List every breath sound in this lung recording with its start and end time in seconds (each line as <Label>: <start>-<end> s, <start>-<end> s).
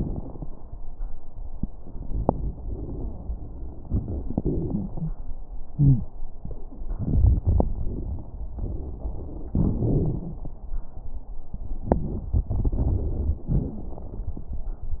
Inhalation: 1.81-3.53 s
Exhalation: 3.89-5.16 s
Wheeze: 5.75-6.08 s
Crackles: 1.81-3.53 s, 3.89-5.16 s